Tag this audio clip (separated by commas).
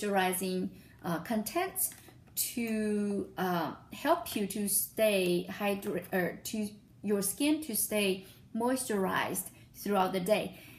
Speech